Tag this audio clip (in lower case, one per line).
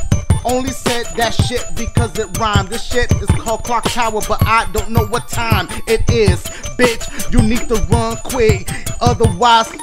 music